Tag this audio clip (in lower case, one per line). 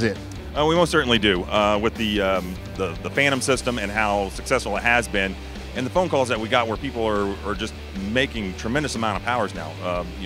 speech
music